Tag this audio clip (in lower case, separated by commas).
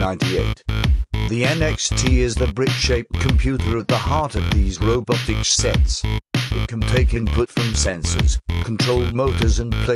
speech, drum machine, music